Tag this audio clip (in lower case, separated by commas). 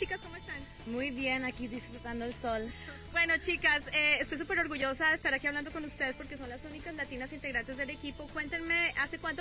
speech, music